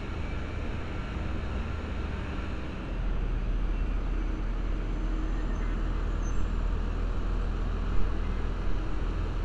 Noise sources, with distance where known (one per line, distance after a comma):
large-sounding engine, near